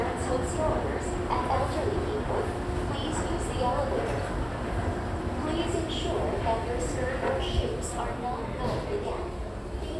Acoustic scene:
crowded indoor space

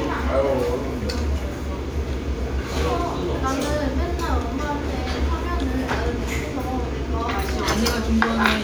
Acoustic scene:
restaurant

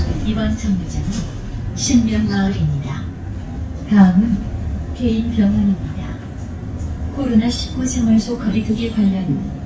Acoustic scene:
bus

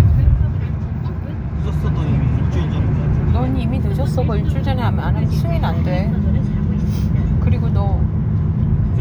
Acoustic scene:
car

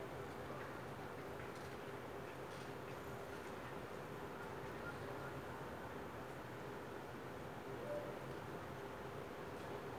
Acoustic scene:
residential area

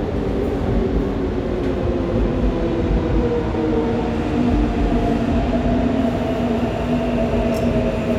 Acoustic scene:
subway station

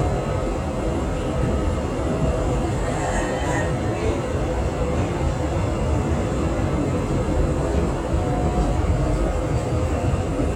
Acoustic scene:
subway train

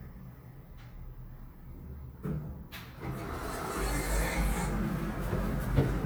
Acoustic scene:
elevator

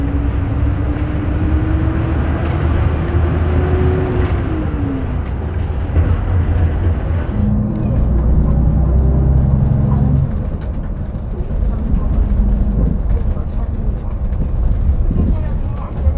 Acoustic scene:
bus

